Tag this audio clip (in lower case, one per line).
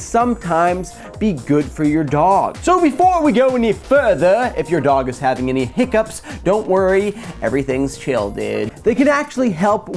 music
speech